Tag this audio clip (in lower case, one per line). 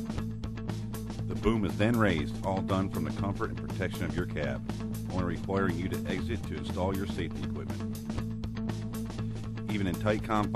music
speech